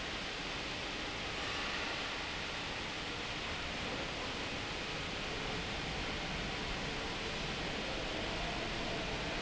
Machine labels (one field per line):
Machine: pump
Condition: abnormal